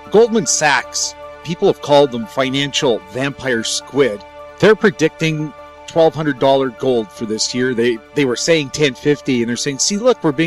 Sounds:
music
speech

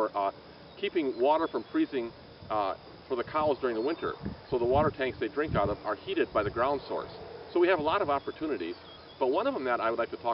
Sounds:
rustling leaves
speech

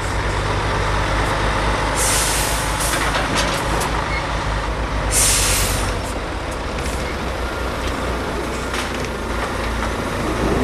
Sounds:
railroad car

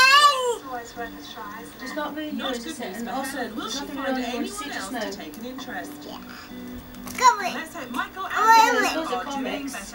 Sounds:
speech
music

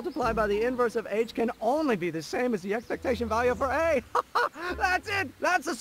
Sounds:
speech

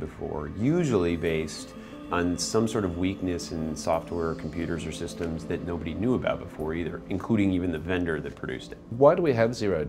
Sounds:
speech
music

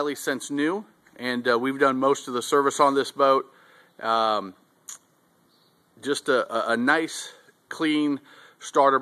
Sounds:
speech

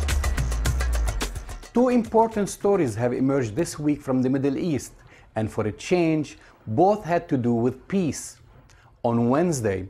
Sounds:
speech
music

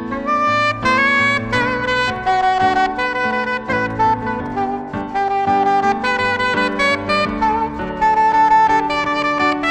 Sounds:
playing saxophone

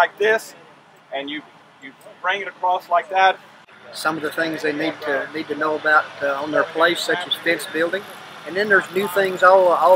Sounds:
speech

